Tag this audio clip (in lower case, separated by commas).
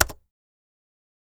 typing, domestic sounds, computer keyboard